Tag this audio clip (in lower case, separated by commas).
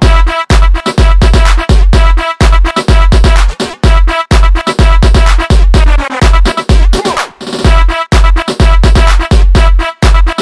music, dance music